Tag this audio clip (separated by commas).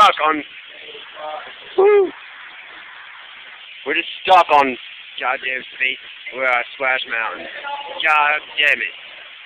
Speech, Water